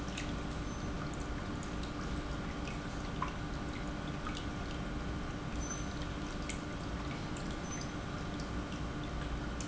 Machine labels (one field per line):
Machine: pump